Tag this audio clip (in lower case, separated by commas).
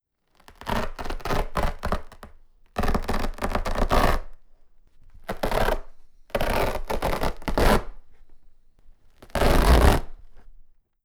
tearing